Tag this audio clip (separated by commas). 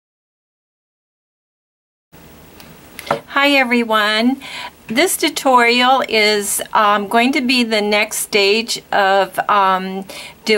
Speech